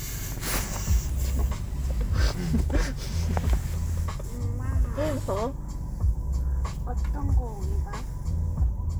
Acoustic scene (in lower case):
car